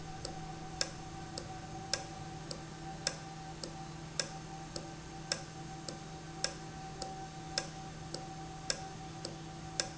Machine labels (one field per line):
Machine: valve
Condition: normal